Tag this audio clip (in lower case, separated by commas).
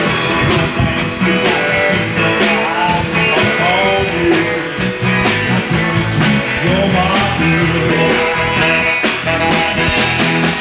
music